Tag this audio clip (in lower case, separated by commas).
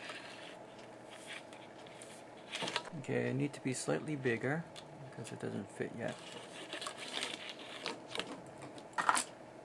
speech, inside a small room